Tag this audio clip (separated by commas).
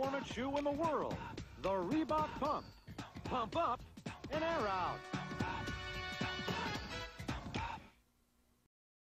Speech, Music